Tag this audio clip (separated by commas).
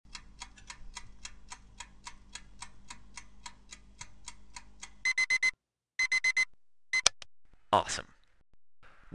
Tick, Speech